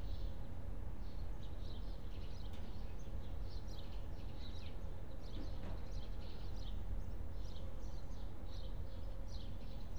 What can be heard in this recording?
background noise